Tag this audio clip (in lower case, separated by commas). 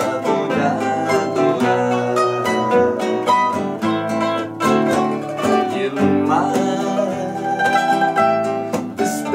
music, mandolin